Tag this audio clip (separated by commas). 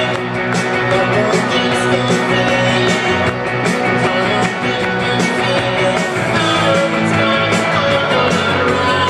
Music